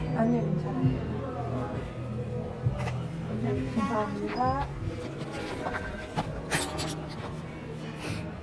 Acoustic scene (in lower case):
crowded indoor space